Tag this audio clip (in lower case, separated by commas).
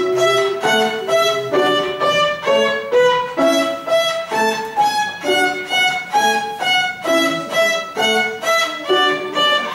fiddle, music, musical instrument, speech